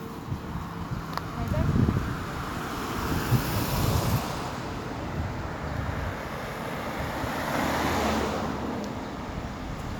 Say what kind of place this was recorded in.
street